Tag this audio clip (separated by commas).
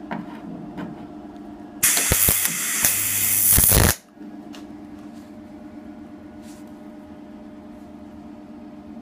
inside a large room or hall